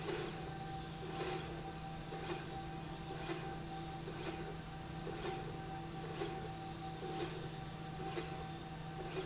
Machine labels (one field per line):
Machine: slide rail